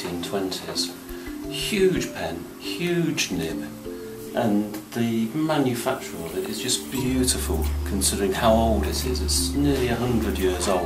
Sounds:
speech, music

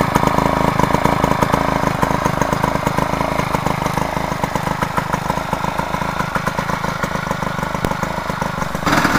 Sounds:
vehicle

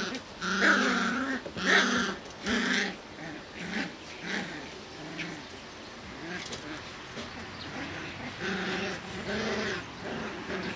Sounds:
dog, pets, canids, animal

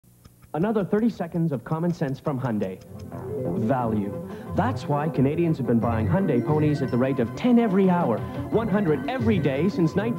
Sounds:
music, speech

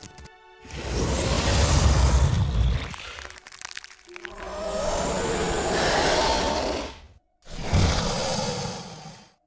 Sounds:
music

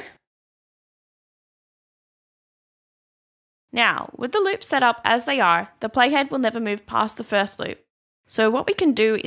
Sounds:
speech

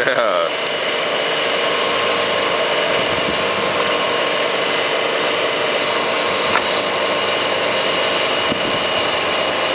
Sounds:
speech, outside, rural or natural, vehicle

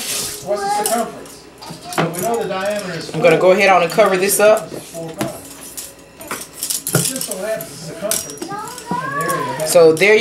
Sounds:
dishes, pots and pans

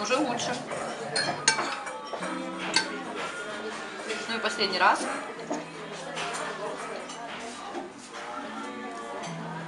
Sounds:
eating with cutlery

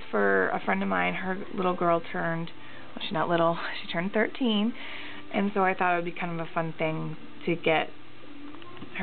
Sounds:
speech

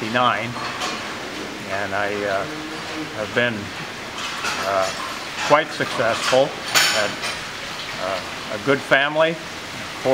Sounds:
speech

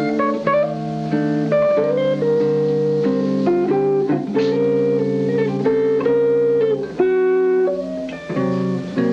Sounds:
plucked string instrument, music, guitar, jazz, electric guitar, musical instrument

